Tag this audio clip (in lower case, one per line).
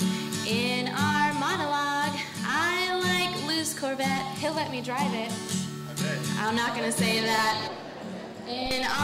music
speech